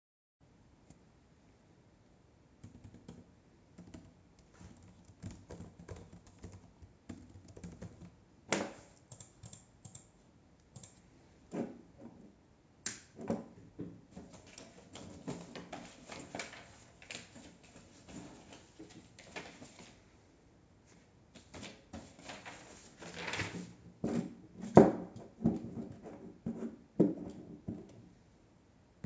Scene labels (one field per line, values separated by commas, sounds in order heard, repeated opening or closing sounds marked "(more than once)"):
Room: office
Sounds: keyboard typing, light switch